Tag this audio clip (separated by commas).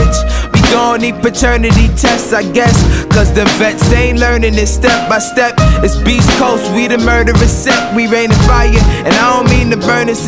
Music